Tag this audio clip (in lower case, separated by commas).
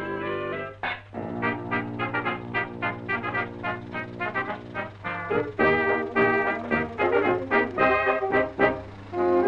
car, vehicle, music